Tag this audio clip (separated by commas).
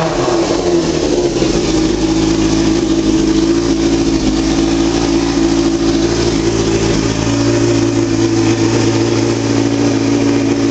Motorcycle